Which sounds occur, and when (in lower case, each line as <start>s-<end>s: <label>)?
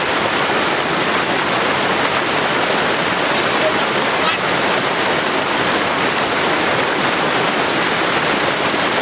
0.0s-9.0s: pump (liquid)
0.0s-9.0s: stream
3.5s-4.4s: human voice